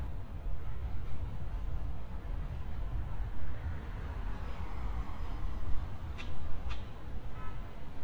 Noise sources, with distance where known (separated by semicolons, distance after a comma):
medium-sounding engine; car horn